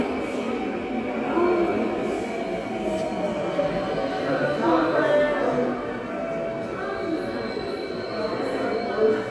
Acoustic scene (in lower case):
subway station